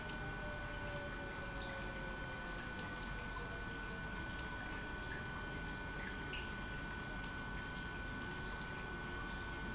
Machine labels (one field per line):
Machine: pump